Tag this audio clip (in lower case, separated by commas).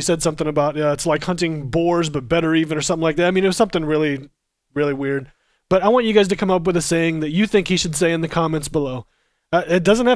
speech